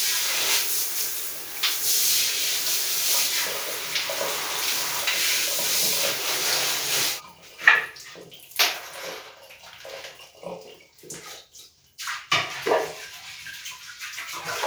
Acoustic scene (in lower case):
restroom